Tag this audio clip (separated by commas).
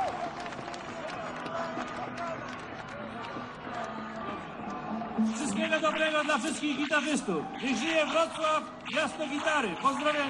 Music, Speech